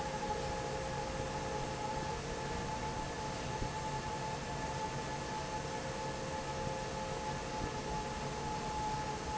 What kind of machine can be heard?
fan